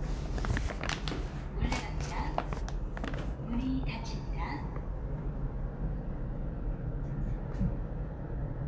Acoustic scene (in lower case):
elevator